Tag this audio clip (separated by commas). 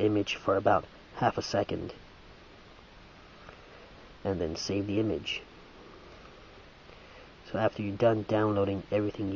Speech